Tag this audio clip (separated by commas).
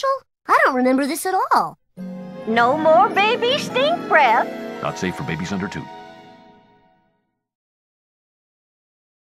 Speech, Music